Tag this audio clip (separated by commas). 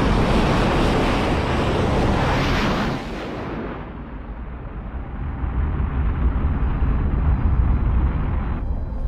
missile launch